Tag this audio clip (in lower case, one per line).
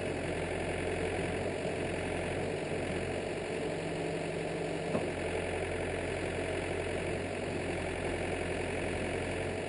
vehicle